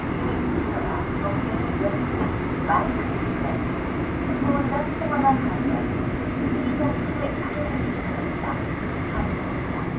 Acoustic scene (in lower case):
subway train